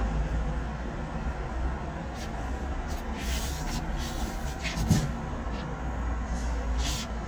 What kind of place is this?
residential area